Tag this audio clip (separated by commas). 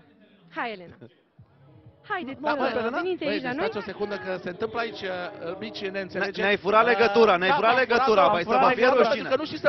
Speech